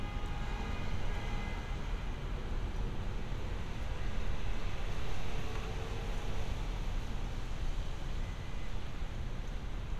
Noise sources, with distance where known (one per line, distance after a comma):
medium-sounding engine, far
car horn, far